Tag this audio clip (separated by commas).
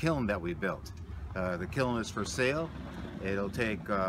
Speech